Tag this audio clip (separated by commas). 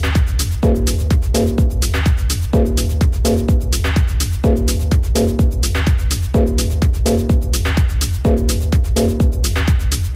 Techno, Electronic music, Music